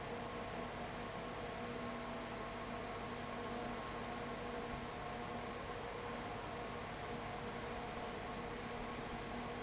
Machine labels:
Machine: fan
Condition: abnormal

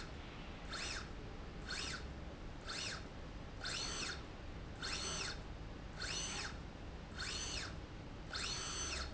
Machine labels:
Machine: slide rail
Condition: normal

